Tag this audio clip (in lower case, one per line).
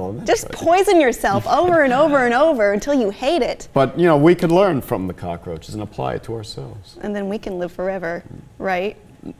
inside a small room
speech